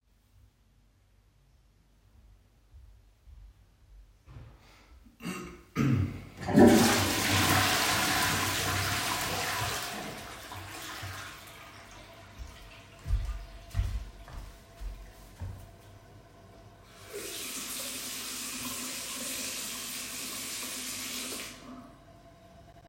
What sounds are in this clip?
toilet flushing, footsteps, running water